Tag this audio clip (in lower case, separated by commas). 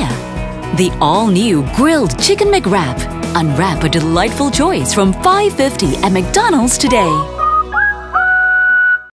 speech, music